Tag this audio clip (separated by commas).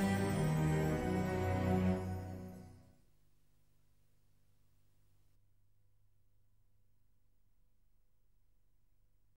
Music